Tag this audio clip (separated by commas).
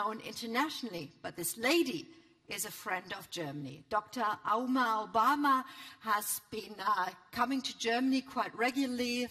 Speech, Narration, woman speaking